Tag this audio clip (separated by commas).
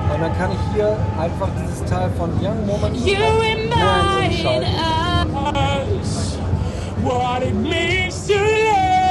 Speech